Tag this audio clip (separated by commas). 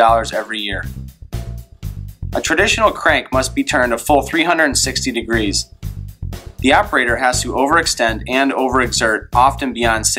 Speech, Music